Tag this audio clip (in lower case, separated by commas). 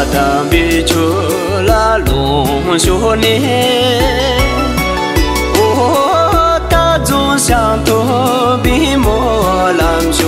singing, music